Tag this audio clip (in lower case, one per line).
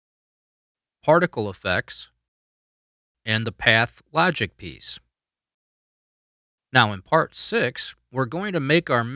speech